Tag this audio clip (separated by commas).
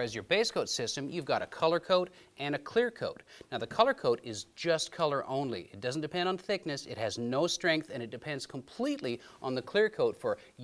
Speech